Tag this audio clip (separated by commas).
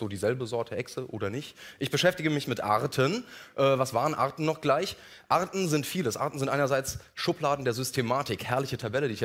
Speech